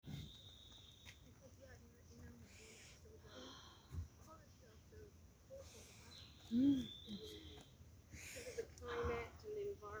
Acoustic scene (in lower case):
park